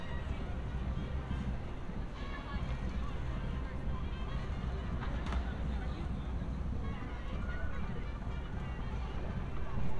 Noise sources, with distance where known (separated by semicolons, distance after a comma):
music from a fixed source, far; person or small group talking